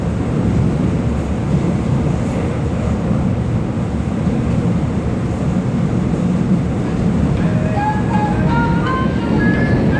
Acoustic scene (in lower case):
subway train